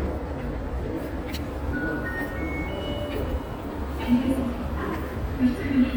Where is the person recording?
in a subway station